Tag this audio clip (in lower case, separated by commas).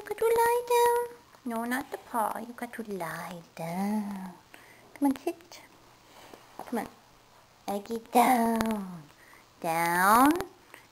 speech